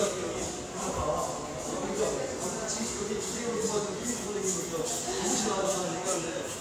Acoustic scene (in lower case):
subway station